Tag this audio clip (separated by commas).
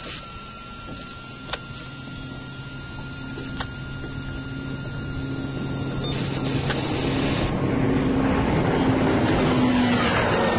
Vehicle, speedboat